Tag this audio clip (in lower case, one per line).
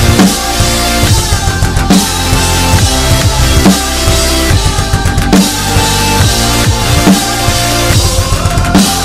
drum kit
bass drum
snare drum
drum
percussion
rimshot